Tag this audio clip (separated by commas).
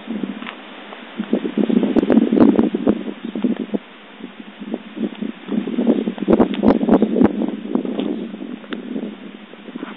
outside, rural or natural